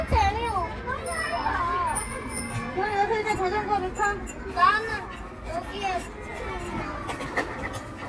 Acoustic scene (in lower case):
park